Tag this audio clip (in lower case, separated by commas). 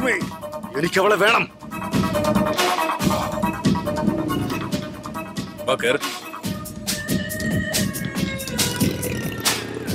music, speech, outside, urban or man-made